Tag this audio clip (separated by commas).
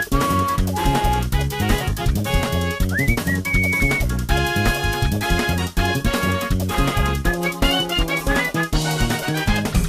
Music, Video game music